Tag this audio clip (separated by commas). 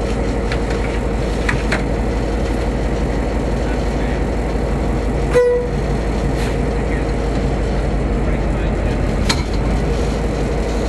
Heavy engine (low frequency), Speech, Vehicle, Idling